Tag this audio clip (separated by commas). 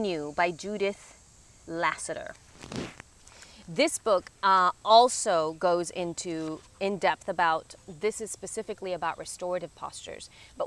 Speech, outside, rural or natural